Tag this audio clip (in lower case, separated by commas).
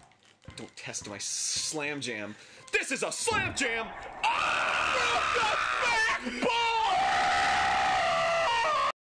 speech